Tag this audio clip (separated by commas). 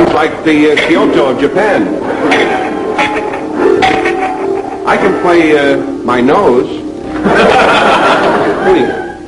Speech